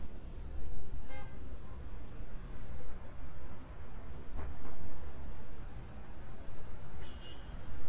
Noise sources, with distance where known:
car horn, far

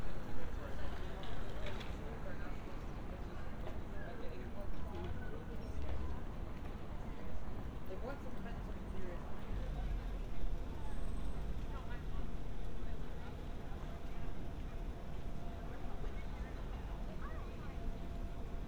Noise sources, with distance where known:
background noise

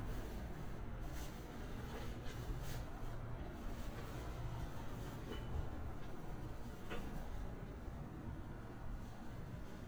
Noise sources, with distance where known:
background noise

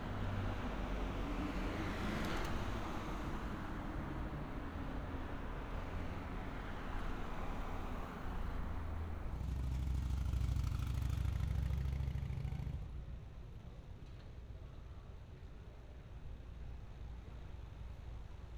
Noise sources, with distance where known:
medium-sounding engine

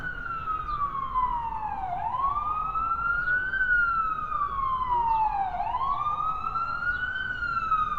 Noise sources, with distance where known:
siren, near

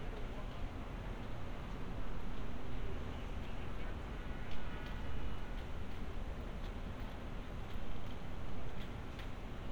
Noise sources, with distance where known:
background noise

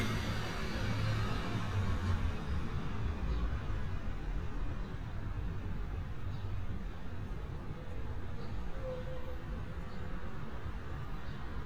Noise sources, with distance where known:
medium-sounding engine

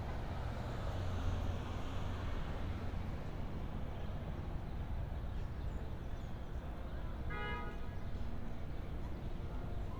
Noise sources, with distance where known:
car horn

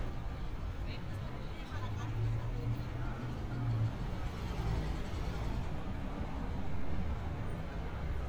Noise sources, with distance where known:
engine of unclear size; person or small group talking

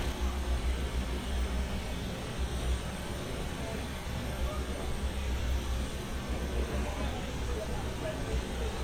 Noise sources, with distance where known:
unidentified impact machinery

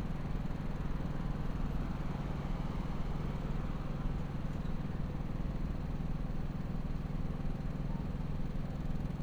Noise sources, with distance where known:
engine of unclear size

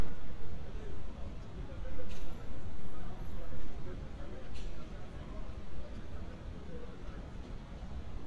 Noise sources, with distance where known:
person or small group talking, far

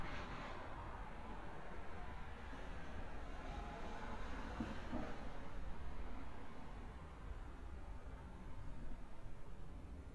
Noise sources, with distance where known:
background noise

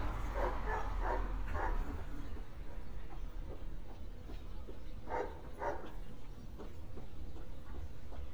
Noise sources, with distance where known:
dog barking or whining, near

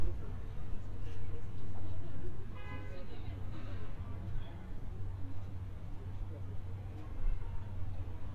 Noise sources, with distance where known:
car horn, near; person or small group talking, far

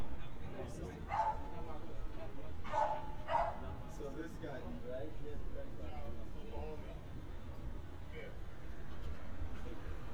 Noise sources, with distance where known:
person or small group talking, near; dog barking or whining, near

